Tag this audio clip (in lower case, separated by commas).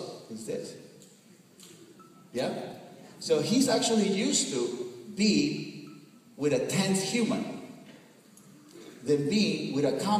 speech